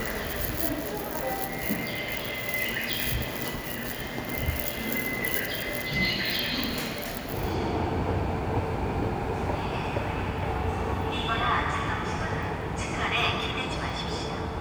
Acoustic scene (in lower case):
subway station